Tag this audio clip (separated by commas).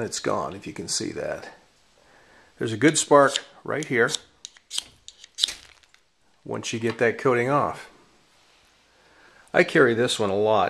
inside a small room, Speech